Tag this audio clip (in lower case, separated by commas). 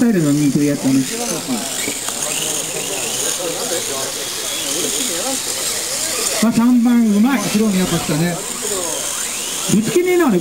speech, car